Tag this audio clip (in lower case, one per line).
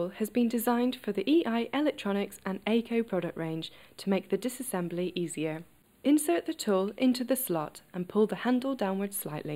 speech